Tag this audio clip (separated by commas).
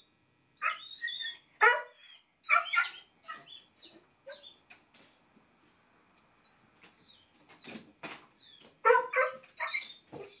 Bow-wow, Dog, Animal, Domestic animals, Bark